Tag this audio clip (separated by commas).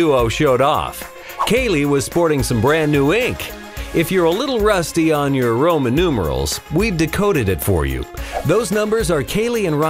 Speech, Music